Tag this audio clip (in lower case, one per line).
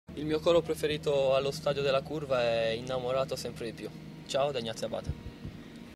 speech